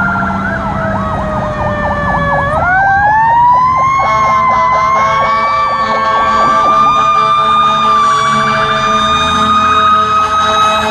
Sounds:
fire truck siren

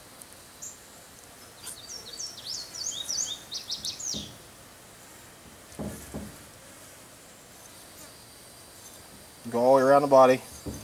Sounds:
speech
environmental noise

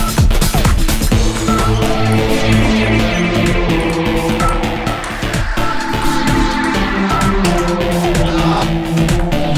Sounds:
music
ping

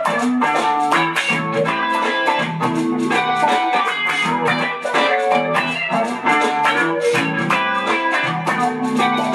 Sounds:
musical instrument
electric guitar
music
playing electric guitar
plucked string instrument
strum
guitar

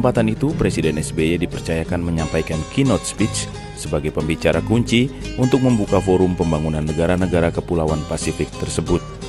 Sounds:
male speech
speech
music
narration

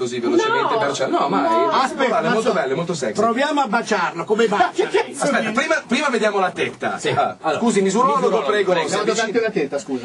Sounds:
speech

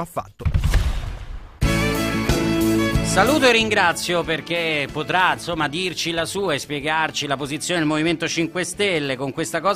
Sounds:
music
speech

